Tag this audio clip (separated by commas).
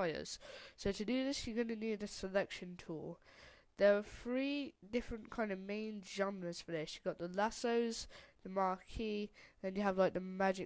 Speech